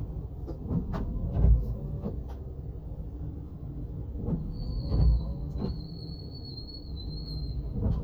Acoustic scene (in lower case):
car